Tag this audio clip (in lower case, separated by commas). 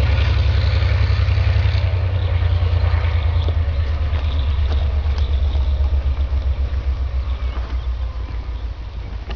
vehicle, medium engine (mid frequency), engine